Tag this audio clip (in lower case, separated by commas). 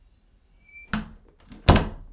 door, slam, home sounds